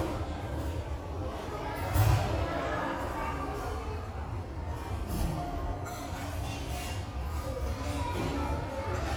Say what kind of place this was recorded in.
restaurant